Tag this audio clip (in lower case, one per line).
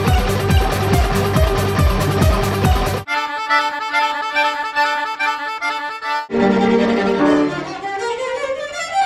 music